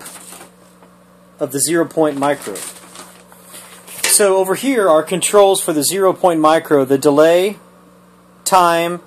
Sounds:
Speech

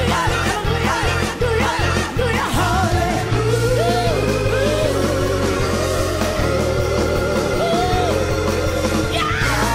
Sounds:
Music

